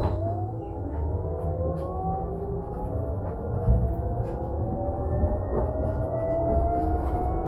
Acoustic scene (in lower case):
bus